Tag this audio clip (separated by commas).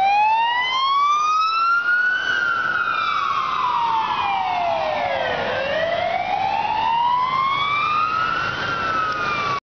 Emergency vehicle, Police car (siren), Vehicle